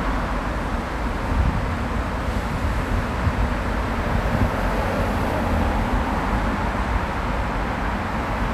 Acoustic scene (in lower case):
street